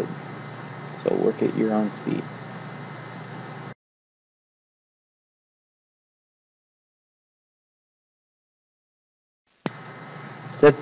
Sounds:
Speech

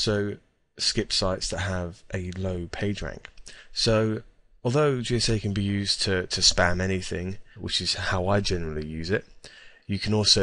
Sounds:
Speech

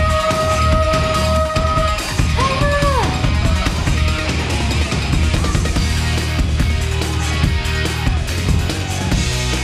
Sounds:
Music

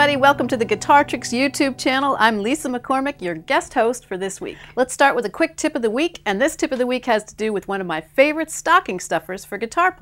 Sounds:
Speech, Music

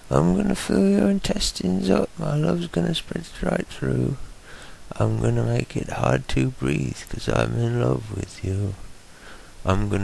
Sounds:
Speech

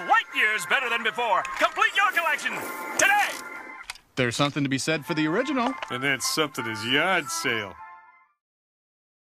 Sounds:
Speech, Music

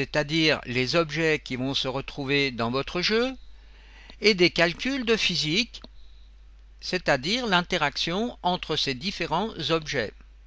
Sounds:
Speech

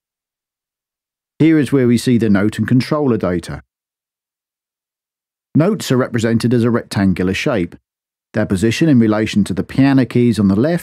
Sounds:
monologue

